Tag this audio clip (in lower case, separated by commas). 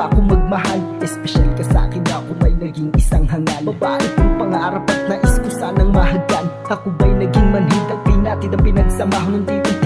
music